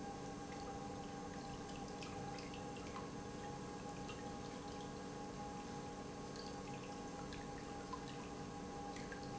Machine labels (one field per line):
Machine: pump